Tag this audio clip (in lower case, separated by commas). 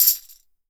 musical instrument, music, tambourine, percussion